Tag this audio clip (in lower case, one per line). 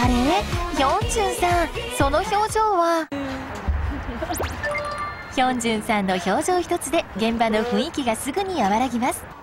speech
female singing
music